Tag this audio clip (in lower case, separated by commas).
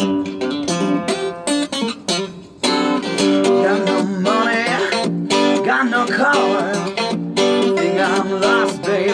music